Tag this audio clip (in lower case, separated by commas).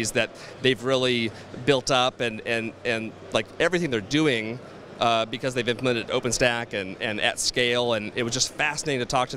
speech